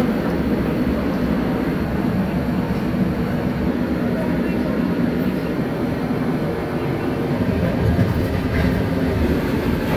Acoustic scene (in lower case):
subway station